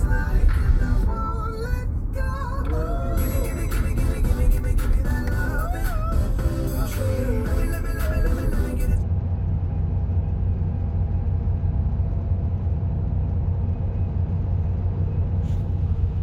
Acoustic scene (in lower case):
car